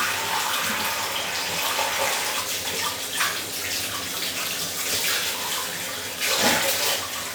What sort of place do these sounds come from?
restroom